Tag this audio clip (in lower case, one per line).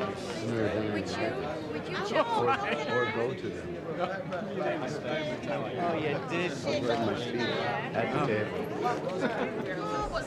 speech